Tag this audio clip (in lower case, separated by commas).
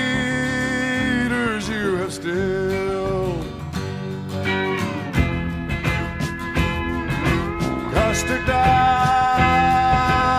music